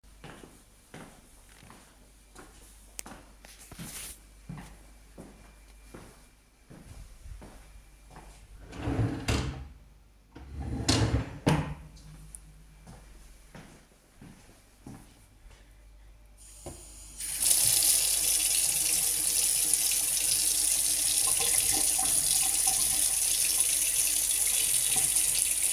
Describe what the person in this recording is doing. I walked to the drawer, opened and closed it. Then I went to the sink, turned on the water, and stopped it after a few seconds.